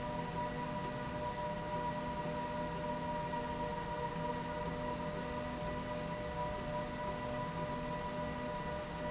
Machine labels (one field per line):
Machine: slide rail